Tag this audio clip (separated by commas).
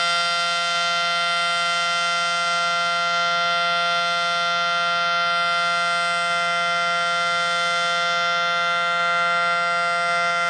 Siren